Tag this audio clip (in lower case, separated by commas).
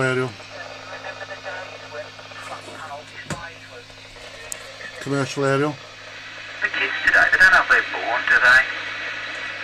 radio, speech